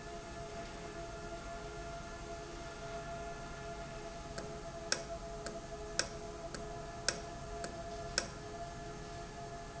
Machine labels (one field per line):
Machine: valve